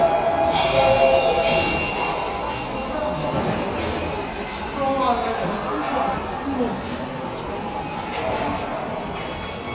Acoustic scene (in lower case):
subway station